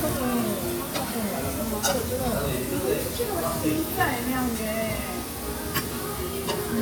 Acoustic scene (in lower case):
restaurant